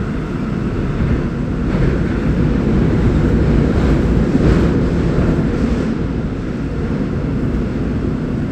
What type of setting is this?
subway train